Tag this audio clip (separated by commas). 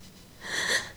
Breathing, Gasp, Respiratory sounds